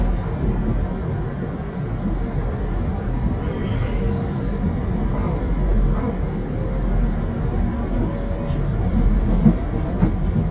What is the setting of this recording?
subway train